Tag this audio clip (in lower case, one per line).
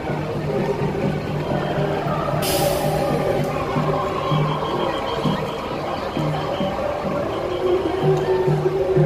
people marching